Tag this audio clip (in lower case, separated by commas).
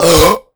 burping